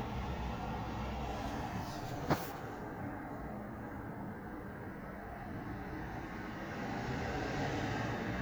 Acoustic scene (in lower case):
residential area